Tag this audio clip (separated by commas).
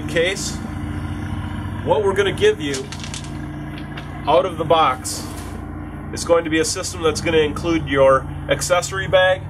Speech